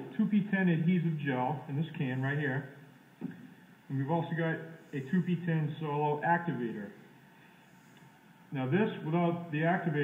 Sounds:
Speech

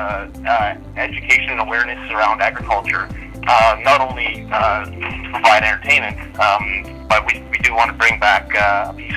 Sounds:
Speech, Music

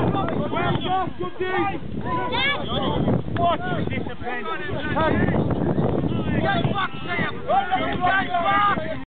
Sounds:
Speech

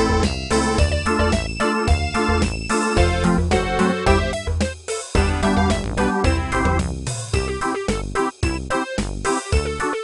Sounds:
Music

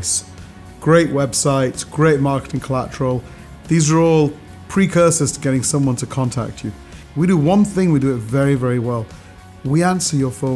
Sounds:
Music, Speech

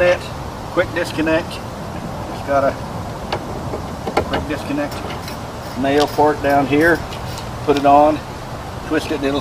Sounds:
Speech

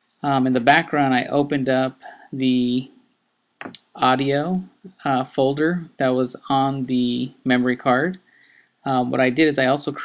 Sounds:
Speech

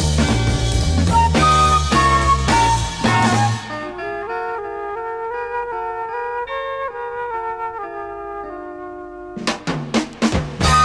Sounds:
Music

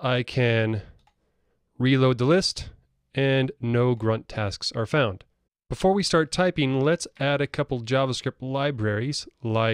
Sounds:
Speech

